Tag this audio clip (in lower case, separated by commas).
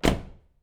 vehicle, motor vehicle (road), car